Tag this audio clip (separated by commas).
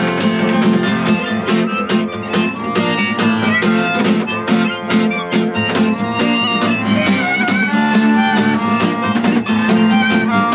woodwind instrument, Harmonica